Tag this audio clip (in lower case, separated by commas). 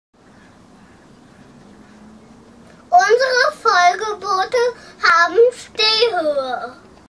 speech